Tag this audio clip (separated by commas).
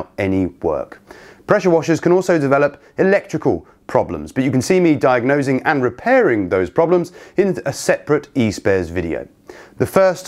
Speech